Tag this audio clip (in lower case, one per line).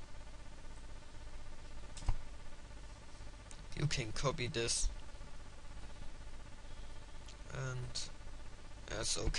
clicking
speech